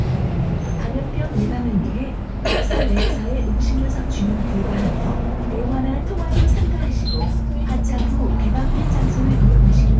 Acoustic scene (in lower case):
bus